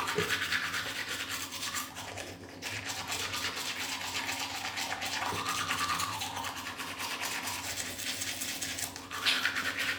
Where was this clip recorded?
in a restroom